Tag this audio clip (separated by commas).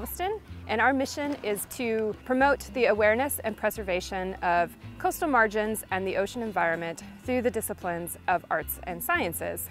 Music, Speech